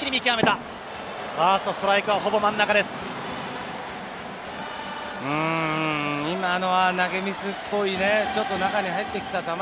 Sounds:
music
speech

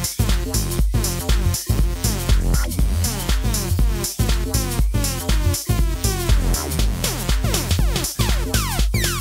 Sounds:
music

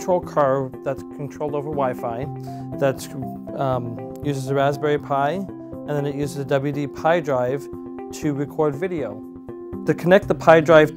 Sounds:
speech
music

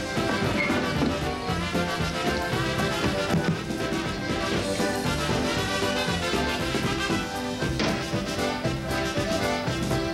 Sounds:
music

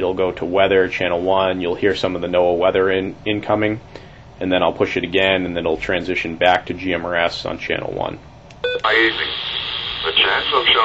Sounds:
radio
speech

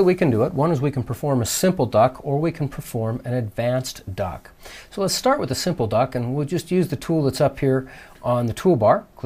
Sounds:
speech

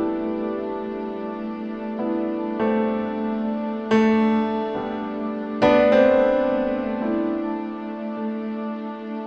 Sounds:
music

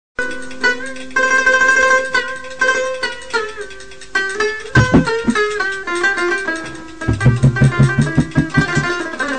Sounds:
ukulele
music
mandolin

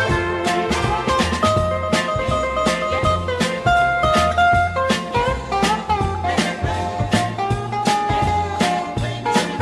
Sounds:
soul music
music
funk

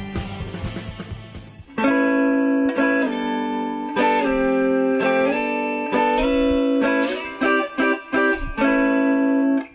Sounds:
plucked string instrument
strum
guitar
electric guitar
music
musical instrument

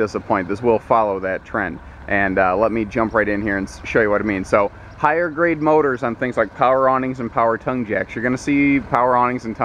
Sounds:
speech

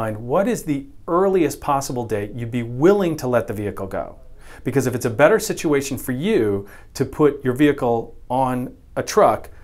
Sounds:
speech

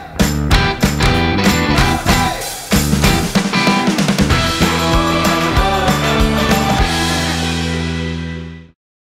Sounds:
music

